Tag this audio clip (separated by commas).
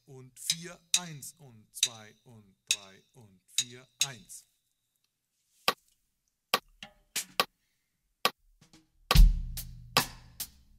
metronome